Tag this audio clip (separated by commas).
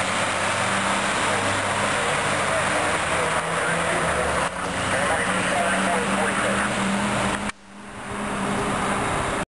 Medium engine (mid frequency), Speech, Engine, Vehicle